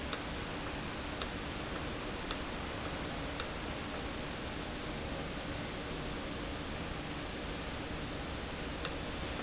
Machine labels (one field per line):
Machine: valve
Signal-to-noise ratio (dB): -6 dB